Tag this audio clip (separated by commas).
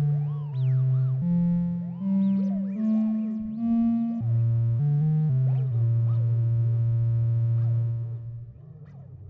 Musical instrument, Synthesizer, Music